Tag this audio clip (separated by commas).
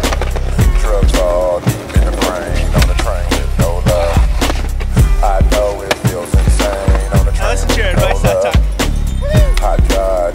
Music, Skateboard, Speech